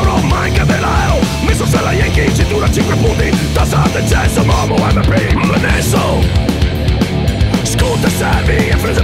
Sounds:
Music

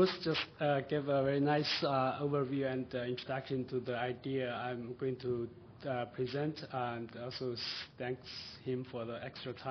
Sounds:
Speech

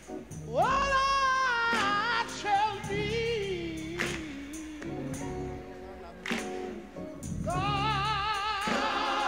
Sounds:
Music, Choir

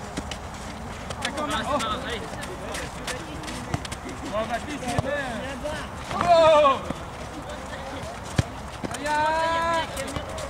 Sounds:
Speech

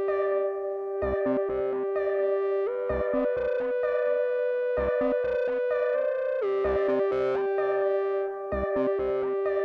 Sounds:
Music, Electronic music

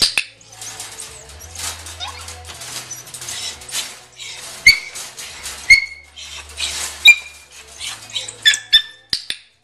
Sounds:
Dog, pets, Whimper (dog)

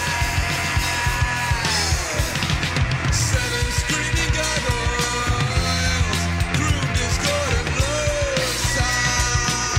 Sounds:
Music

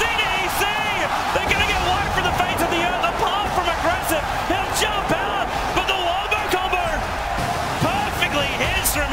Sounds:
Speech

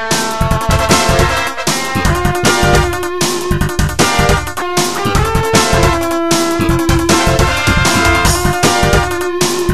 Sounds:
Music, Theme music

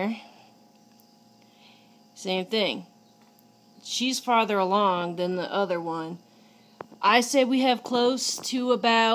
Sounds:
Speech

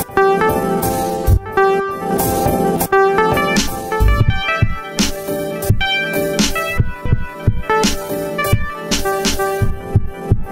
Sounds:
Music, Sampler

